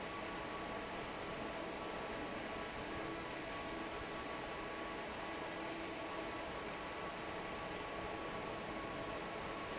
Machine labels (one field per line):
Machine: fan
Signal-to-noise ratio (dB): 6 dB